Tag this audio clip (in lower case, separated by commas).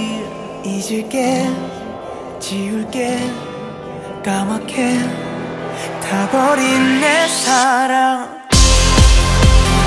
music